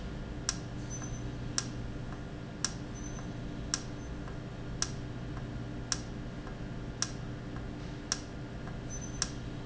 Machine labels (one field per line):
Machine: valve